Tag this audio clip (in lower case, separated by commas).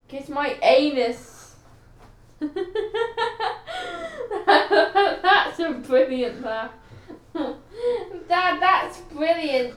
human voice, laughter